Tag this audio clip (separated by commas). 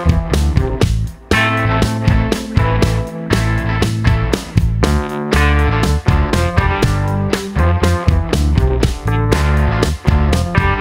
Music